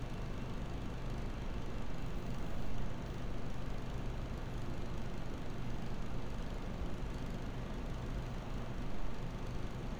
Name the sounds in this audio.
engine of unclear size